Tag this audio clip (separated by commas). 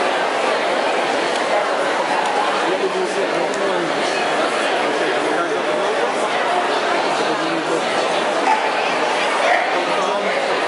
Dog, Animal, Domestic animals, Speech